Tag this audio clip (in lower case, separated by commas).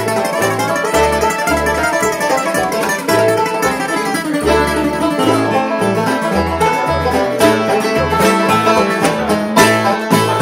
cello, pizzicato, bowed string instrument